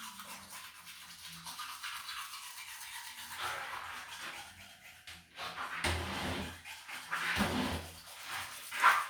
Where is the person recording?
in a restroom